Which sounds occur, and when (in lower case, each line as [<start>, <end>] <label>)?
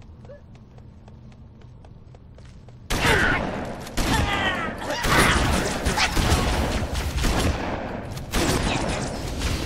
[0.00, 2.85] mechanisms
[0.17, 2.68] run
[0.24, 0.40] human sounds
[2.86, 3.45] human sounds
[2.86, 3.63] gunfire
[3.96, 4.62] gunfire
[4.04, 5.65] human sounds
[4.80, 7.76] gunfire
[7.71, 8.23] footsteps
[8.29, 9.65] gunfire
[8.32, 9.02] human sounds